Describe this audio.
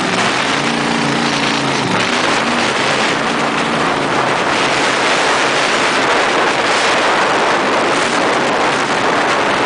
Loud motor running and loud wind